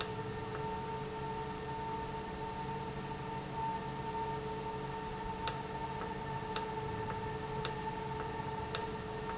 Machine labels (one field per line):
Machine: valve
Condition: normal